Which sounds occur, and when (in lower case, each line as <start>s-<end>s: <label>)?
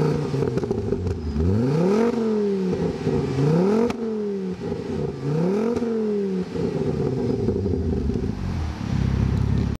0.0s-9.7s: background noise
0.0s-9.7s: car
3.8s-3.9s: tick
5.2s-5.9s: accelerating